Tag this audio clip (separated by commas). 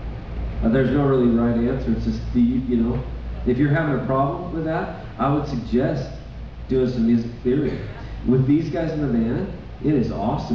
Speech